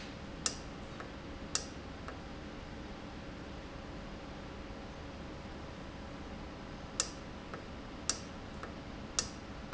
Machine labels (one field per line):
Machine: valve